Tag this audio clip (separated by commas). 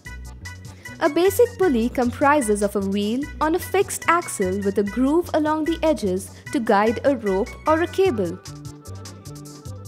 Music, Speech